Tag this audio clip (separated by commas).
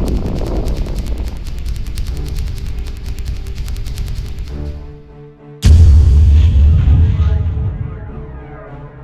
Background music, Music